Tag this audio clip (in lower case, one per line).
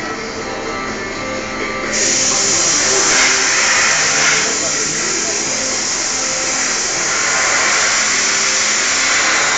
inside a large room or hall
music
speech